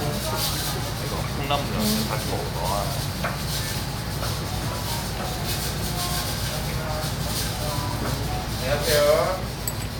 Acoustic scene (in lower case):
restaurant